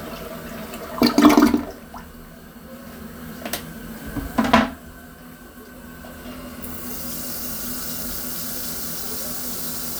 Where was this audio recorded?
in a restroom